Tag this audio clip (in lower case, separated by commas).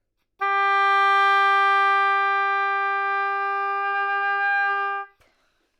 wind instrument, music, musical instrument